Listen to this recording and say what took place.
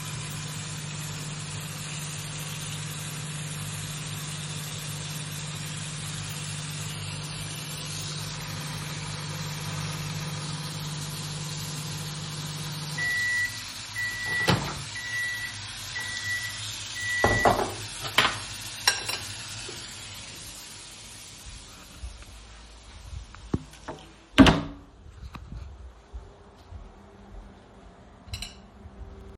I walked over to my roommate who was washing the dishes. When the microwave finished heating my food, I picked it up, put it on a plate, picked up my fork, and left the kitchen, closing the door behind me, before walking over to my desk.